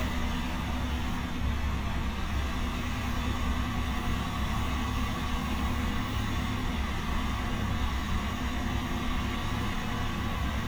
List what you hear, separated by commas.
large-sounding engine